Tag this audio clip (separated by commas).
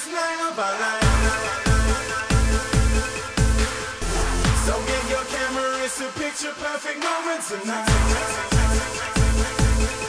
Music, Electronic music, Dubstep